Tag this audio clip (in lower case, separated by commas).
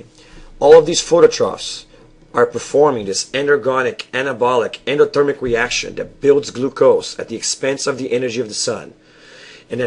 speech